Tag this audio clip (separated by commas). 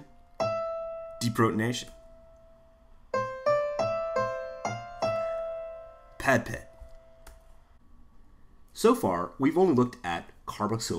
Music, Electric piano, Speech